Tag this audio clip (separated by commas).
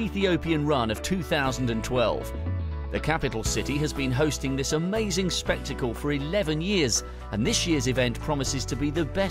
Music, Speech